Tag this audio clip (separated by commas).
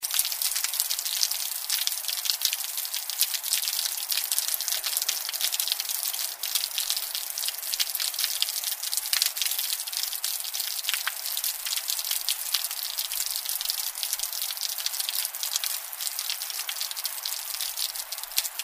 Rain, Water